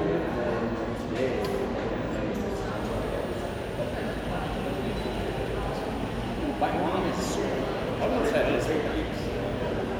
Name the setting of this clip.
crowded indoor space